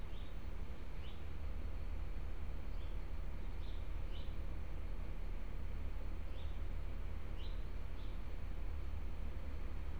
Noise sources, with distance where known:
large-sounding engine, far

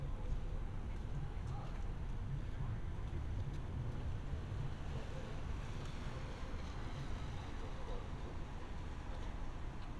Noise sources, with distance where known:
engine of unclear size

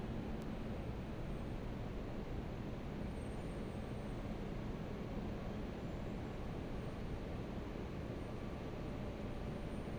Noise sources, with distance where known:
engine of unclear size, far

